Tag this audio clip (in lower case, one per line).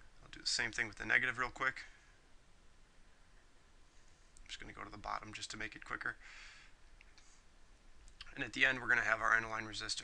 speech